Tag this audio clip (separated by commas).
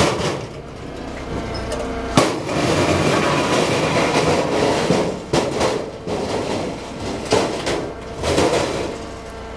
outside, urban or man-made